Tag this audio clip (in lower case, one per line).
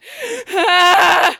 breathing
respiratory sounds
gasp